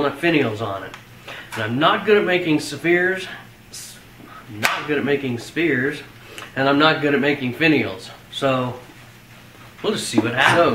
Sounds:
inside a small room
speech

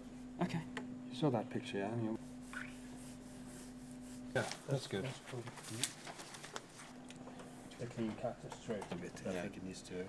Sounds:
speech

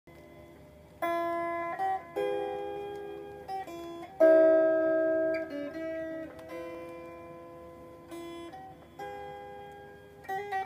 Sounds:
musical instrument
guitar
inside a small room
plucked string instrument
music

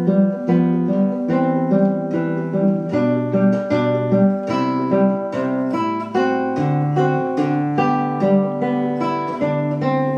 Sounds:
plucked string instrument
guitar
musical instrument
music
acoustic guitar
strum

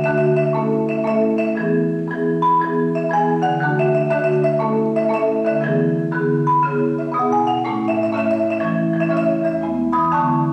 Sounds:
marimba
vibraphone
music

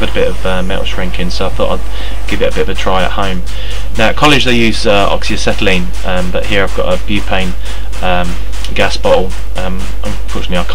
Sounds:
speech

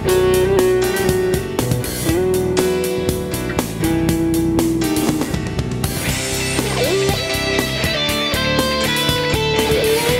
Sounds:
guitar
electric guitar
plucked string instrument
strum
music
musical instrument

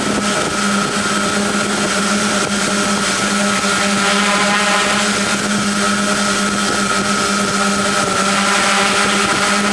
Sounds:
vehicle
blender

